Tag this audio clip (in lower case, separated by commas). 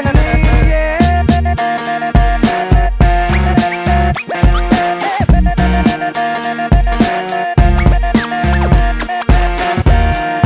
music